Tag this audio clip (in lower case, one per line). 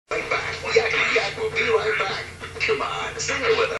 speech